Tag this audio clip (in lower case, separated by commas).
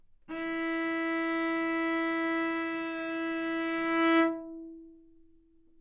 music, bowed string instrument, musical instrument